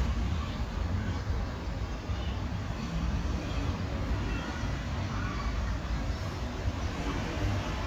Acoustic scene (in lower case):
residential area